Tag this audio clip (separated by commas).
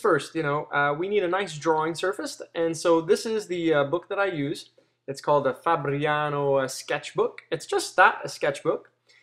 Speech